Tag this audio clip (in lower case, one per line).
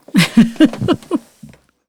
giggle
laughter
human voice